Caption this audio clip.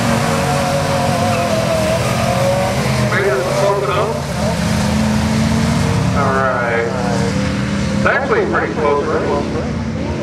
Engine of motor vehicles passing by, with echoing speech heard